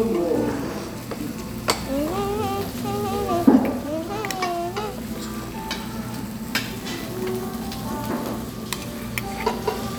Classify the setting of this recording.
restaurant